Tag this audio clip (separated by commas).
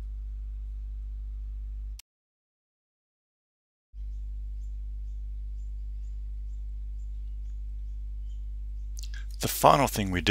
Silence, Speech